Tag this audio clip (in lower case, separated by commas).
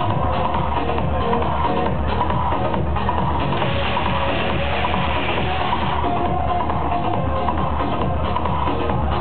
music, sound effect